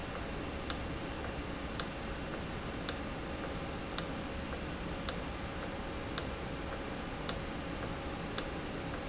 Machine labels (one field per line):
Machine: valve